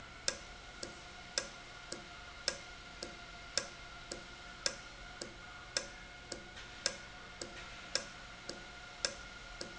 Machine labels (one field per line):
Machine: valve